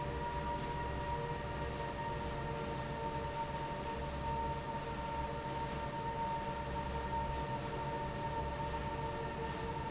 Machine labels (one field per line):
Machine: fan